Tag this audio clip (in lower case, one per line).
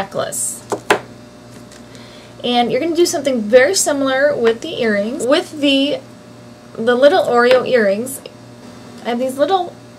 speech
inside a small room